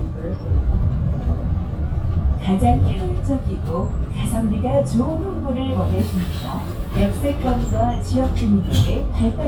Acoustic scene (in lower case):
bus